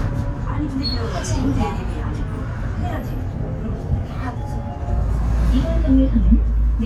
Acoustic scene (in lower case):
bus